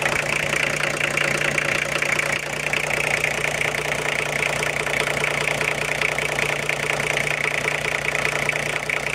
A car engine is roughly idling and vibrating